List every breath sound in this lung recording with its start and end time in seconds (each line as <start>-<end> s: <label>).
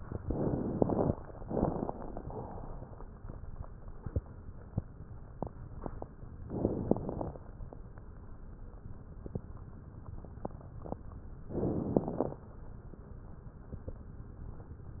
0.21-1.10 s: inhalation
0.21-1.10 s: crackles
6.49-7.38 s: inhalation
6.49-7.38 s: crackles
11.54-12.43 s: inhalation
11.54-12.43 s: crackles